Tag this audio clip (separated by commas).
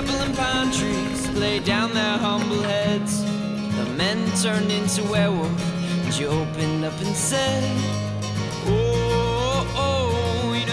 Music